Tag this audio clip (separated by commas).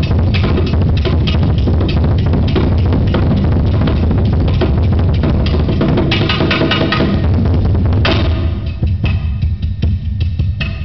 Music, Percussion